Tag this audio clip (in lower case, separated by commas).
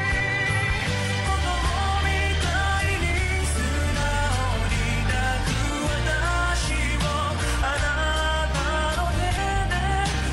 singing, music, music of asia